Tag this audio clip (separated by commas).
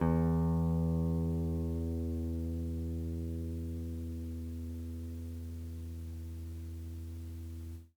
Guitar, Plucked string instrument, Music, Musical instrument